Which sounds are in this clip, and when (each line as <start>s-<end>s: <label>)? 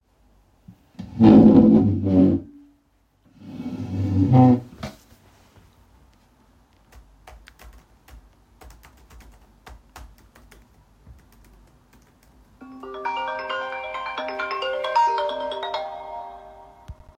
6.9s-12.6s: keyboard typing
12.6s-17.2s: phone ringing